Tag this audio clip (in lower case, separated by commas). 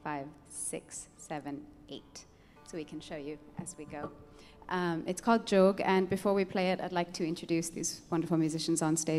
speech